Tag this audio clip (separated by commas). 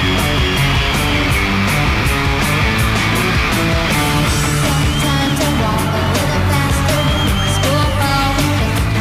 Pop music, Music